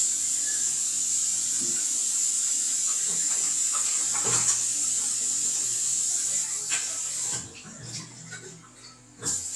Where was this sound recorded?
in a restroom